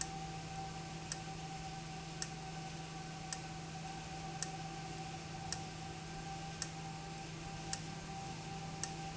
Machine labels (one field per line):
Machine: valve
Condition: abnormal